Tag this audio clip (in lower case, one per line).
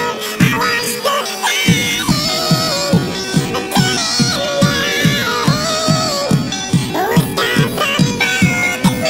music